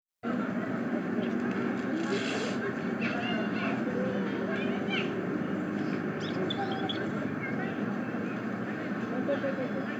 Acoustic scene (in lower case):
residential area